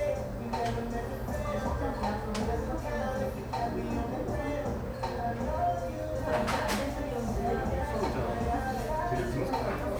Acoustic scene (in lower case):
cafe